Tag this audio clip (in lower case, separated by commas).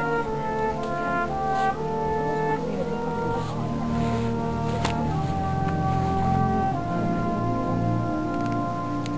brass instrument, french horn, music, speech